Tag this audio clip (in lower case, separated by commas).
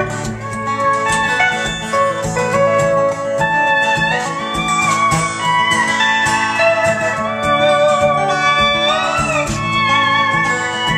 music, guitar, musical instrument, plucked string instrument